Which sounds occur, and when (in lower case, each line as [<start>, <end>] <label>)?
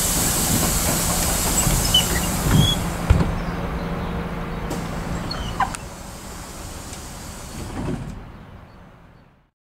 [0.00, 3.19] sliding door
[0.00, 9.48] heavy engine (low frequency)
[0.53, 0.86] generic impact sounds
[1.84, 2.22] squeal
[2.43, 2.66] generic impact sounds
[2.48, 2.74] squeal
[3.02, 3.21] generic impact sounds
[3.36, 4.11] bird song
[4.45, 4.68] bird song
[4.62, 4.76] generic impact sounds
[4.93, 8.07] sliding door
[5.27, 5.65] squeal
[5.54, 5.76] generic impact sounds
[6.86, 6.96] generic impact sounds
[7.71, 8.14] generic impact sounds
[8.18, 8.49] bird song
[8.67, 8.88] bird song
[9.12, 9.35] bird song